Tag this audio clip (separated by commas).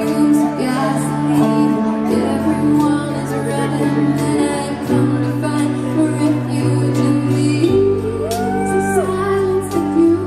Music, Bluegrass